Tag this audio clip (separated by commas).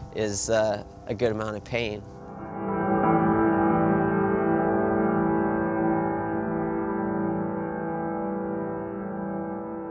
Speech, Music